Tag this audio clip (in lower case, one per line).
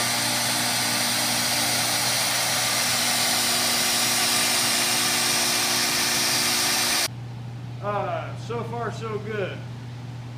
tools